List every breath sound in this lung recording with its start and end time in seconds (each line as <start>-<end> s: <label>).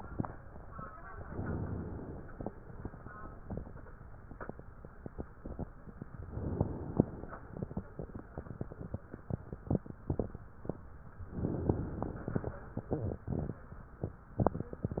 1.24-2.37 s: inhalation
6.25-7.39 s: inhalation
11.34-12.48 s: inhalation